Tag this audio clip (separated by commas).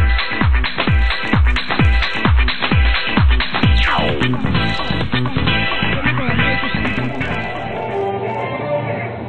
Music